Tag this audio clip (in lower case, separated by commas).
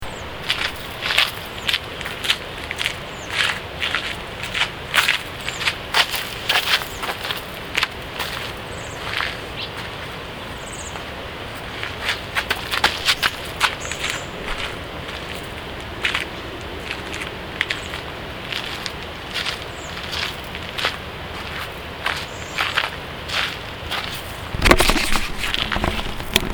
animal, wild animals, bird